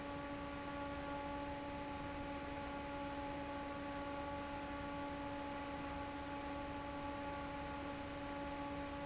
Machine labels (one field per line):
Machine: fan